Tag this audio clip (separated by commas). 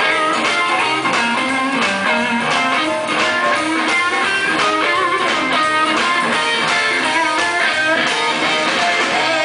Guitar, Musical instrument, Music, Plucked string instrument